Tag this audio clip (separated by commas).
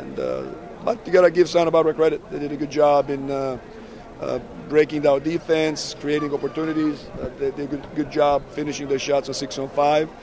Speech